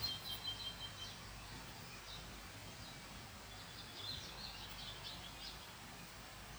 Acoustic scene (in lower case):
park